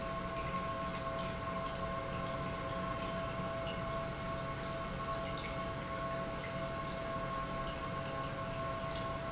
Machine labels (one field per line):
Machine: pump